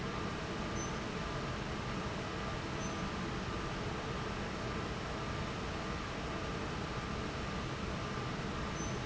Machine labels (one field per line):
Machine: fan